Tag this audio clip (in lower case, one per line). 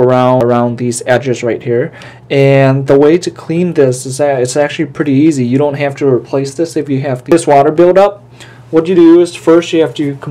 speech